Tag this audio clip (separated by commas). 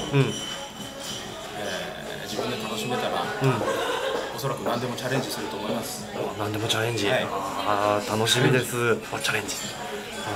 Speech, Music